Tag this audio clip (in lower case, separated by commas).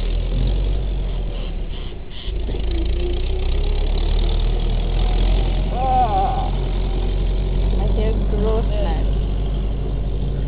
speech, outside, rural or natural